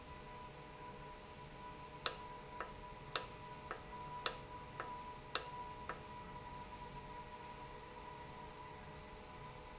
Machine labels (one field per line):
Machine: valve